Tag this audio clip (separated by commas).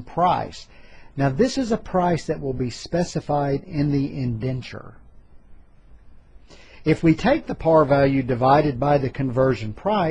Speech